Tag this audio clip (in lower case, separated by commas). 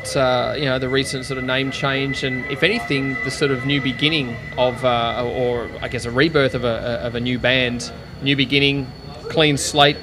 speech